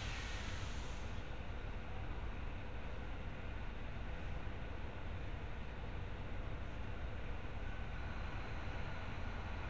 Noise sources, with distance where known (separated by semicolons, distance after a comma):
background noise